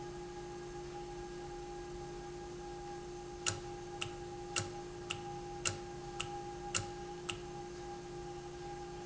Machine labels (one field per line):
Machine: valve